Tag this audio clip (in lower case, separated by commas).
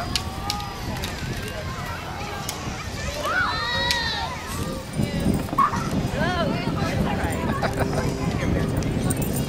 outside, rural or natural, kid speaking, speech